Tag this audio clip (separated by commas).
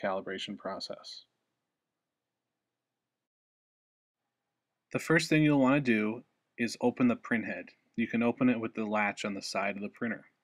Speech